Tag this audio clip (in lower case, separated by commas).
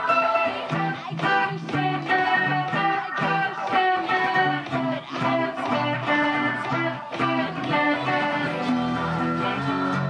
guitar, electric guitar, musical instrument, plucked string instrument, strum, music